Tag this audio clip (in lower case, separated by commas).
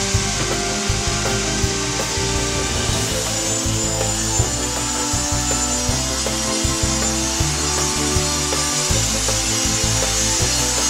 music